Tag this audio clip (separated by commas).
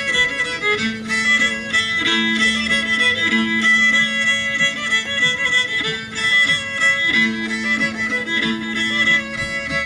fiddle, Music, Musical instrument